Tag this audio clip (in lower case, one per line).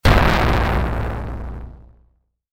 explosion